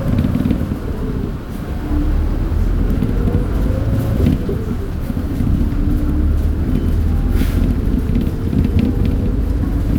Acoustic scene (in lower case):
bus